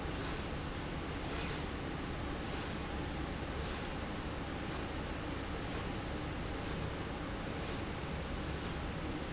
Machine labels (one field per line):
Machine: slide rail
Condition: normal